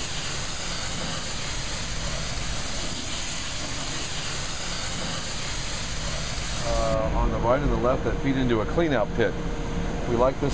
Some fuzzy noise with a man speaking at the end